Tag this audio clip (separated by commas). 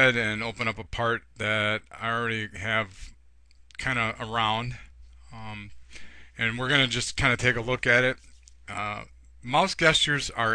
Speech